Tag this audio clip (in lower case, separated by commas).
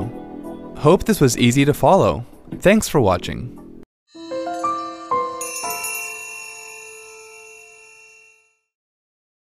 speech, music